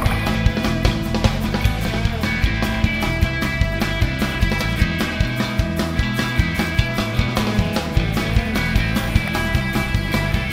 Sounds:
Music

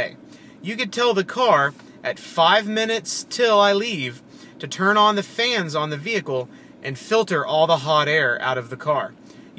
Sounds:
Speech

